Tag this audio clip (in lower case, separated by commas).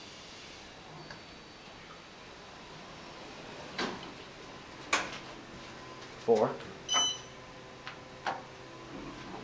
inside a small room, opening or closing drawers, drawer open or close, speech